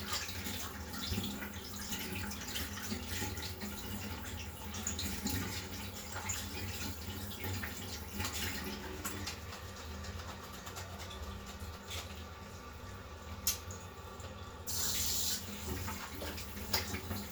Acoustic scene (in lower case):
restroom